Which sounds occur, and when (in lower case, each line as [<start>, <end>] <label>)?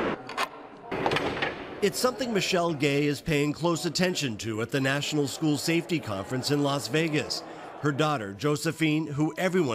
[0.00, 0.19] sound effect
[0.00, 9.74] background noise
[0.26, 0.45] generic impact sounds
[0.88, 1.56] slam
[1.38, 1.44] tick
[1.73, 9.74] speech noise
[7.43, 7.75] breathing
[7.79, 9.74] man speaking
[8.67, 9.74] music